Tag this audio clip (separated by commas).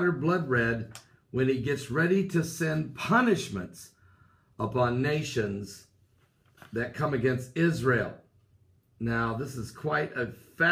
Speech